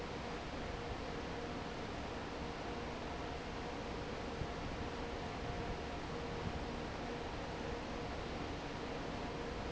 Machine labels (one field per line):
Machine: fan